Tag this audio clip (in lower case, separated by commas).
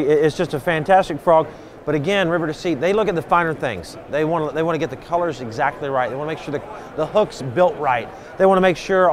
speech